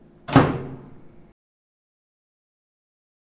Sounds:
Microwave oven, Domestic sounds, Door, Slam

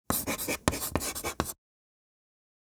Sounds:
Writing, home sounds

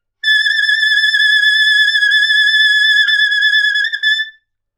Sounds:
Musical instrument, Music, Wind instrument

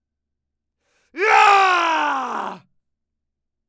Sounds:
Shout, Human voice, Screaming

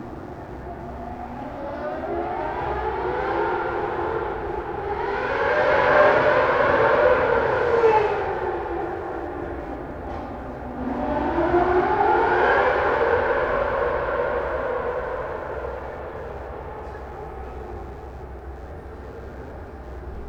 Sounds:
Vehicle, Car, Motor vehicle (road), Race car

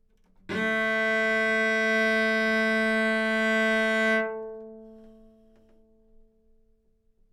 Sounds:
Bowed string instrument, Music, Musical instrument

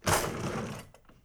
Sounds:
home sounds, Drawer open or close

